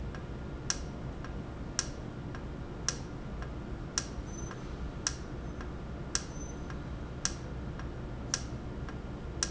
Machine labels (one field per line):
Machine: valve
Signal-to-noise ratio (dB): -6 dB